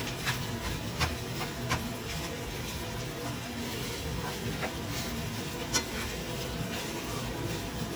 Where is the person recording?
in a kitchen